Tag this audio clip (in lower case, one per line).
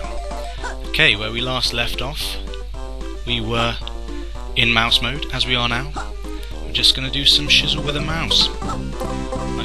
speech
music